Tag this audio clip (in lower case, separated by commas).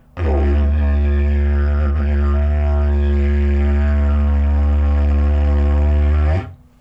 music, musical instrument